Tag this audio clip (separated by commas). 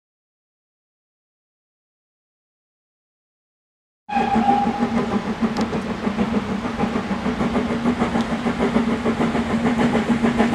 train whistling